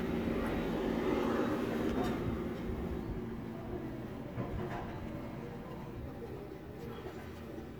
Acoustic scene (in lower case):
residential area